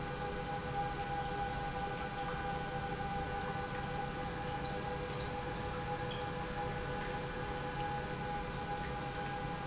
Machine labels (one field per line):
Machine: pump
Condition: normal